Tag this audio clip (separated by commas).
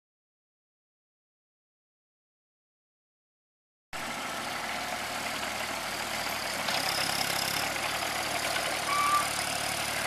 Vehicle, Silence, outside, rural or natural